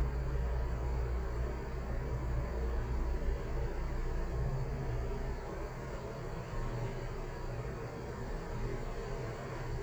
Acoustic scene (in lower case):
elevator